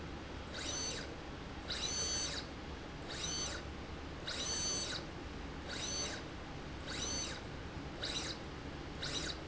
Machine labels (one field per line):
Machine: slide rail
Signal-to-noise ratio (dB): 0 dB